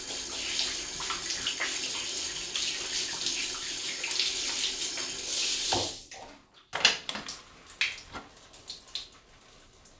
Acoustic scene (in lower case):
restroom